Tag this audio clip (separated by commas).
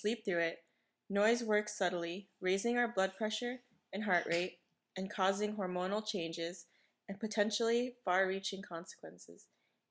Speech